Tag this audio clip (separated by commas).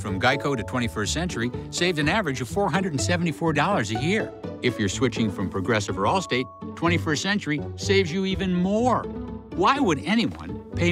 Music, Speech